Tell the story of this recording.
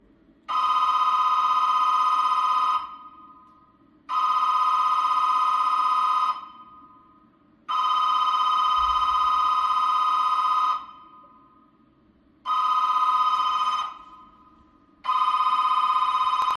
I went to the hallway whilethe doorbell was ringingand turned the light on. I waited a bit before answering the door